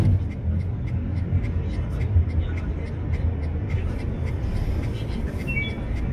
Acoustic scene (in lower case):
car